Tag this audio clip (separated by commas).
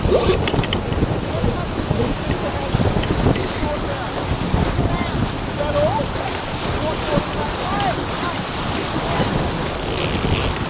Speech, surf, Vehicle, Boat